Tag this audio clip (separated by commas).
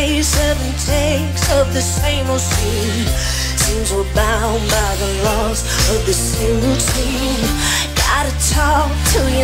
Pop music